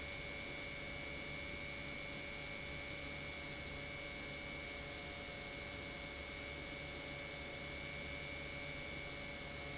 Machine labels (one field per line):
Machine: pump